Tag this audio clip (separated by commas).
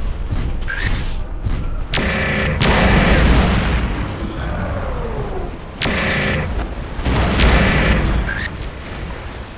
Boom